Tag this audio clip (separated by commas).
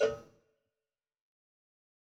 Bell, Cowbell